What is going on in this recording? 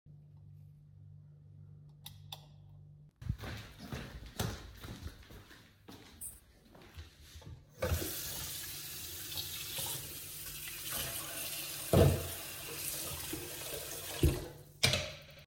I turn on the lights and walk towards the sink and turn on the tap water and cleans the spatula and places it down.